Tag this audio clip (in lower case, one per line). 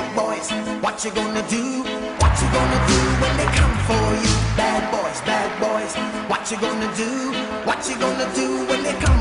music